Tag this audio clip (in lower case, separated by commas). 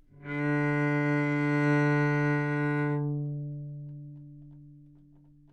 music, bowed string instrument, musical instrument